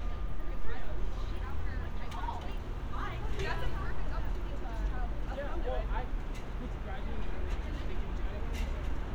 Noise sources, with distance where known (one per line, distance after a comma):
medium-sounding engine
large-sounding engine
person or small group talking